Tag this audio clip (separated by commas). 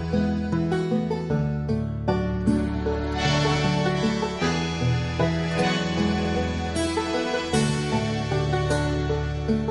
Music